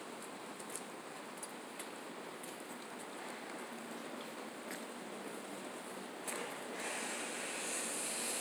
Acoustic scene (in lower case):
residential area